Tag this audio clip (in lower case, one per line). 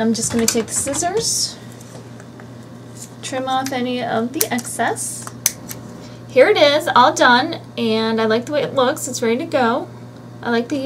inside a small room
speech